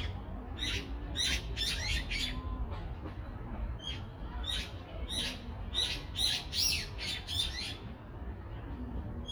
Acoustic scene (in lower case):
residential area